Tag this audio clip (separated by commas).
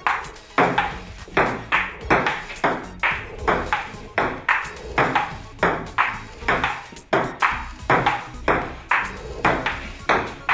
playing table tennis